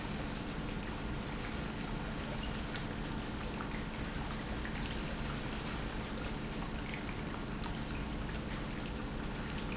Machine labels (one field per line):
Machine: pump